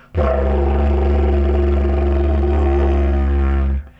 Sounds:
Music, Musical instrument

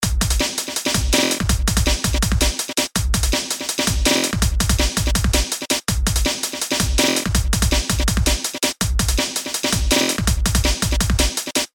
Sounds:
Drum, Percussion, Music, Musical instrument

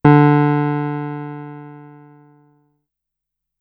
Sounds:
Music, Keyboard (musical), Musical instrument, Piano

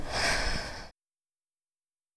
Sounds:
Respiratory sounds, Breathing

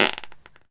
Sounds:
Fart

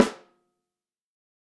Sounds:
Snare drum, Music, Drum, Musical instrument, Percussion

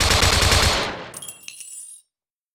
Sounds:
Explosion, Gunshot

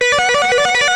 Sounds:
Music, Guitar, Plucked string instrument, Electric guitar, Musical instrument

